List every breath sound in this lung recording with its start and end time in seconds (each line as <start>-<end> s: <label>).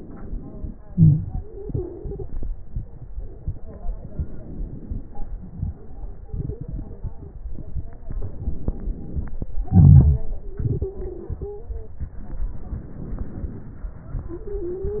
0.00-0.84 s: inhalation
0.84-3.15 s: exhalation
1.25-2.22 s: stridor
3.93-5.23 s: crackles
3.96-5.25 s: inhalation
5.22-8.01 s: exhalation
5.25-7.94 s: crackles
7.97-9.60 s: inhalation
7.97-9.60 s: crackles
9.63-12.19 s: exhalation
10.10-11.96 s: stridor
12.02-14.16 s: inhalation
14.26-15.00 s: stridor